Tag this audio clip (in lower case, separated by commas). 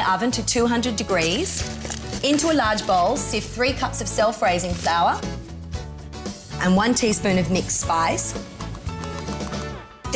speech, music